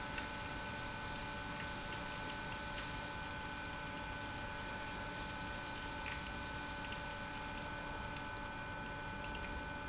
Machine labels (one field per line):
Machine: pump